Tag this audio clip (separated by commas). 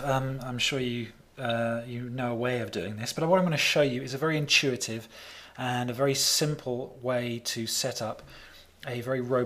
Speech